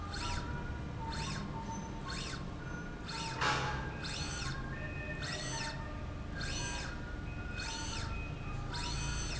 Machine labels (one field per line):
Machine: slide rail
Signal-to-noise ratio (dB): -6 dB